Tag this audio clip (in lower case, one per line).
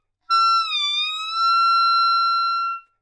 woodwind instrument
music
musical instrument